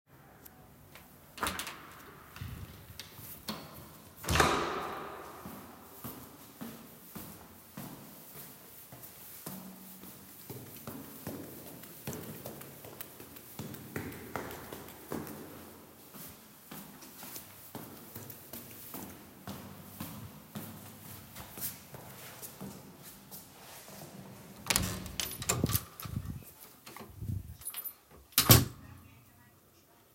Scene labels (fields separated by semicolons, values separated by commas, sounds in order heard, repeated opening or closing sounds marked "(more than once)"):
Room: hallway; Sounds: door (more than once), footsteps, keys